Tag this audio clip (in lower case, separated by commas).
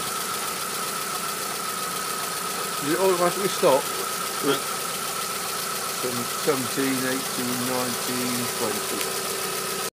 heavy engine (low frequency), car, medium engine (mid frequency), idling, speech, engine